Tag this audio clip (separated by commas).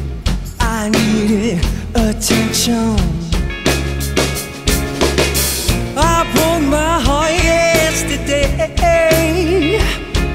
Music